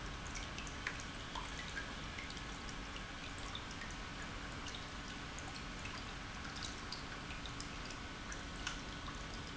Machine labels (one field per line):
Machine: pump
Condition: normal